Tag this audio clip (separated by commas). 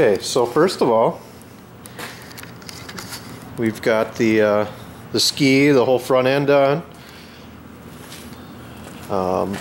Speech